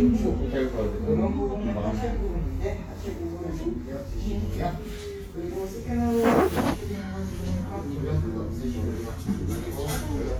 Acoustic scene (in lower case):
crowded indoor space